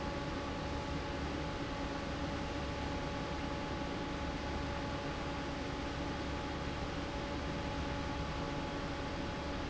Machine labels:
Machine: fan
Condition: normal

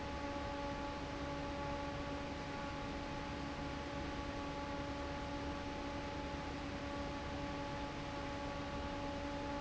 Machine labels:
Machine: fan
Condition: normal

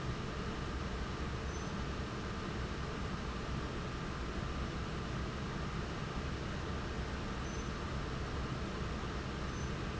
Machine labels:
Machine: fan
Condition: abnormal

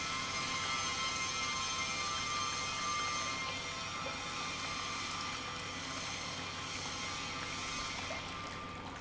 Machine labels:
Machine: pump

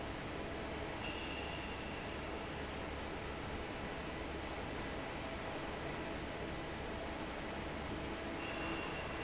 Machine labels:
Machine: fan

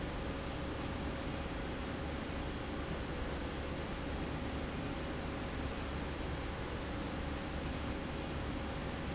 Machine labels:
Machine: slide rail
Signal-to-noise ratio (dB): -6 dB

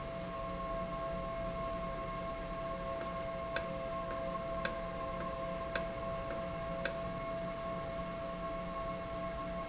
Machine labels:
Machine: valve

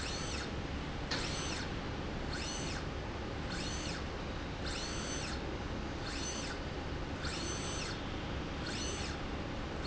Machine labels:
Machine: slide rail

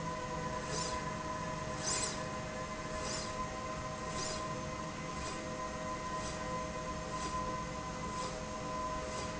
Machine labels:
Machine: slide rail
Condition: normal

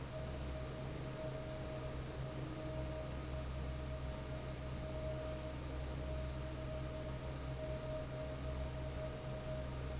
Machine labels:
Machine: fan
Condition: normal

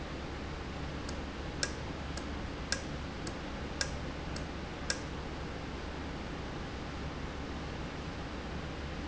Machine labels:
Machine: valve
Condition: normal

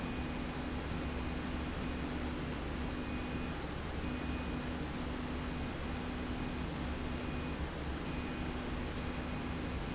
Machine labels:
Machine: slide rail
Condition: normal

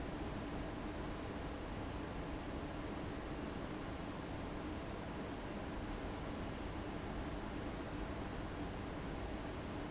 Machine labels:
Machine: fan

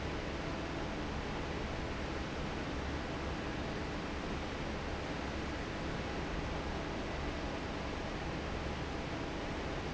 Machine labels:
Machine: fan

